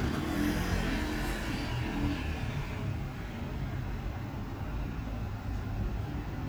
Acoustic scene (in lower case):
street